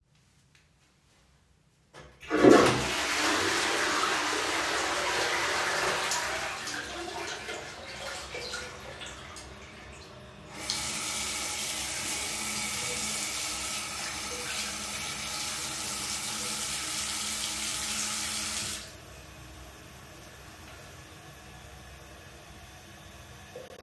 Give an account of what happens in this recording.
First, I flushed the toilet. Then, I turned on the tap and washed my hands.